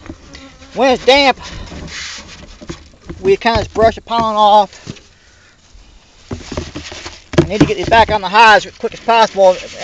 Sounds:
insect, bee or wasp, speech

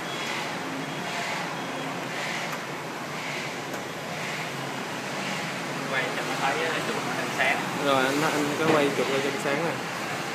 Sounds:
speech

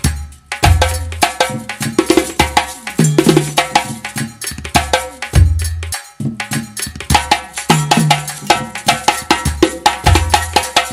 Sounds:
playing djembe

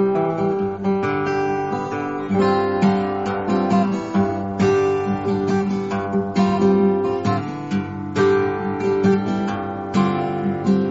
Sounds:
plucked string instrument, guitar, music, musical instrument

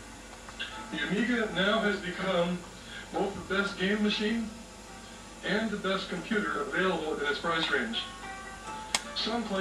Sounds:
television, speech, music

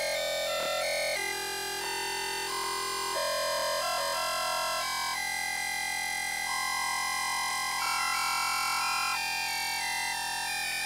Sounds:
sound effect

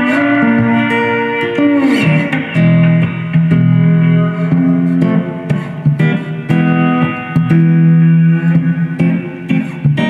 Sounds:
music, guitar

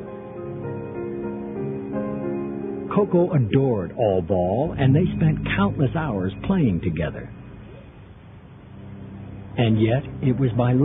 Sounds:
speech, music

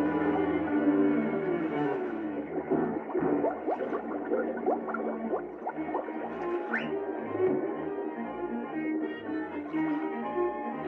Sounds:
music

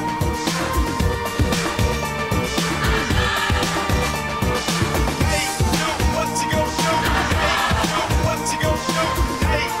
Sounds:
music

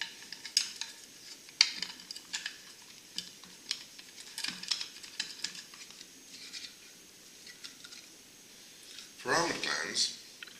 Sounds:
speech

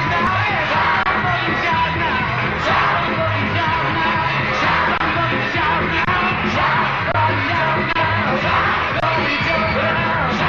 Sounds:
music, shout, rock and roll

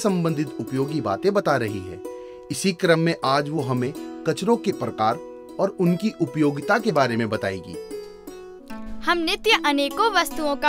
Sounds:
music, speech

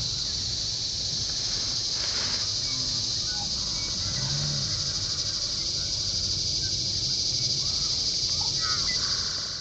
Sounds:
outside, rural or natural

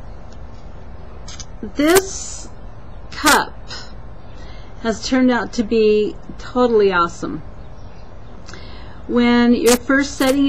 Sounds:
speech

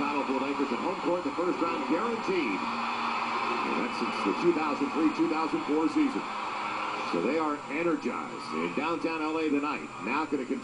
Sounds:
speech

